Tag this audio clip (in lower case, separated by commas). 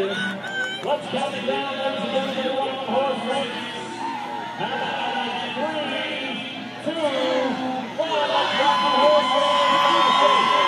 speech